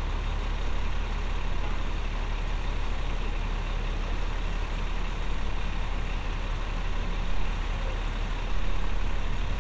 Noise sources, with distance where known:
large-sounding engine, near

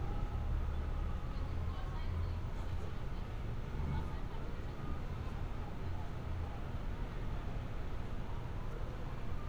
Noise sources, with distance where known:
person or small group talking, far

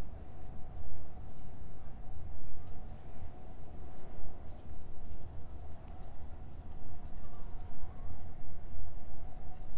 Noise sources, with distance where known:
background noise

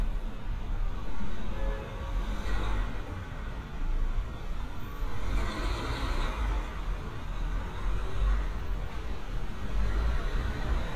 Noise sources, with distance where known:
engine of unclear size, near
car horn

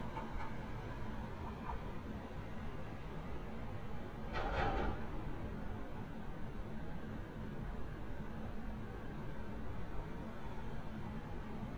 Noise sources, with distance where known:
background noise

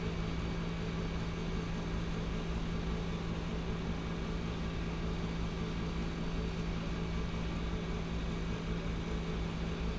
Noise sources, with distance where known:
engine of unclear size

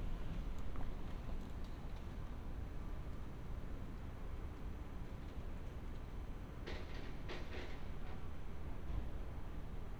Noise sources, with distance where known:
background noise

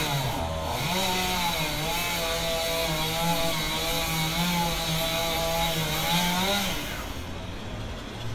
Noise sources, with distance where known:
chainsaw, near

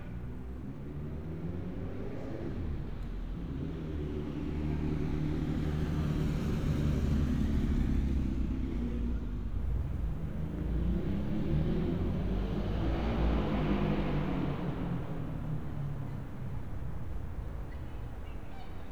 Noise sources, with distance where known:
medium-sounding engine

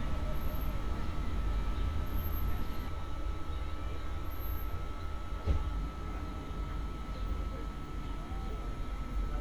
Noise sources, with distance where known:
engine of unclear size

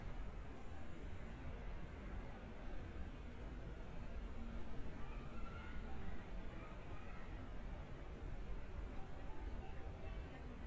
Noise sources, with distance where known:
unidentified human voice, far

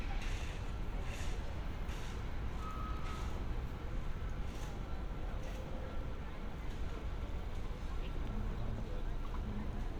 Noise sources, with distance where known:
unidentified human voice

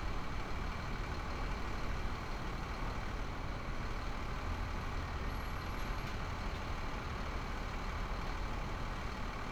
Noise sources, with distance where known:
large-sounding engine, near

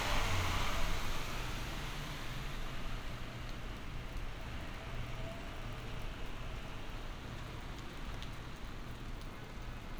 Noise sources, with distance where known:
engine of unclear size

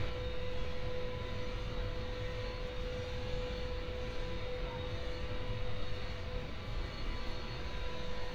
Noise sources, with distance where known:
unidentified impact machinery

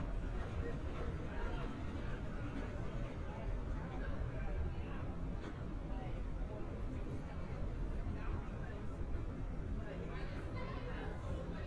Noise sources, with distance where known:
person or small group talking

